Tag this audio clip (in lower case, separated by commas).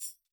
music, percussion, musical instrument, tambourine